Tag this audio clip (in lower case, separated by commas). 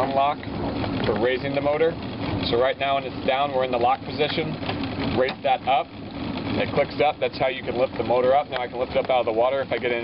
water vehicle, motorboat